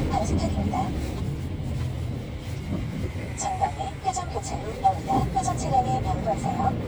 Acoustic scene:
car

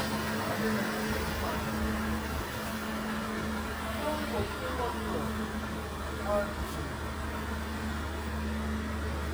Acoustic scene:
residential area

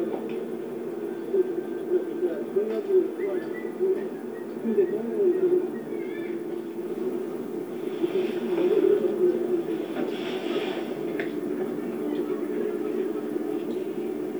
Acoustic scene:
park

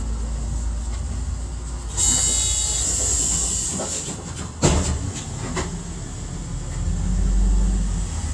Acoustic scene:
bus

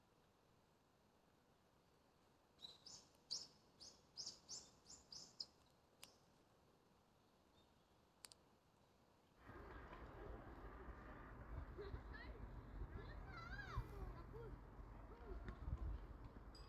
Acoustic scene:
park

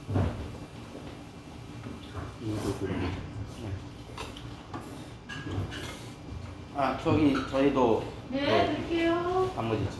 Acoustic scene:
restaurant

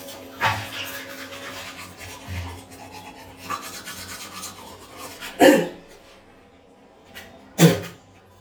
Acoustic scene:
restroom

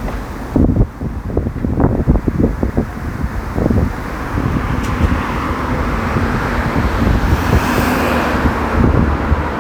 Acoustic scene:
street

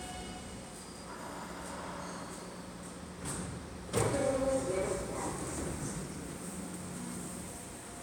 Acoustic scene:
subway station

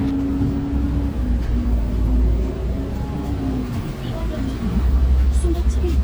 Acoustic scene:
bus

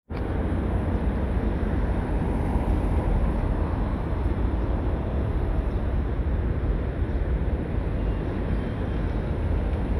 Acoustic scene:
street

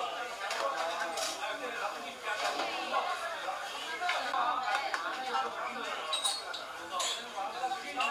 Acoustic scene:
restaurant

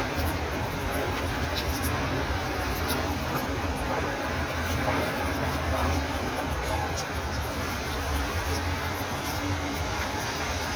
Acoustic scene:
street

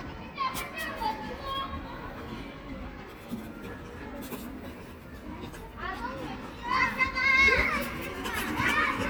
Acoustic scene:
park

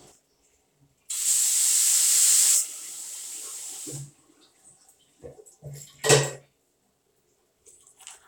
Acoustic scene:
restroom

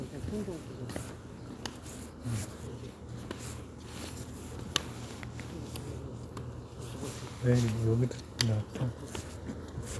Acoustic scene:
residential area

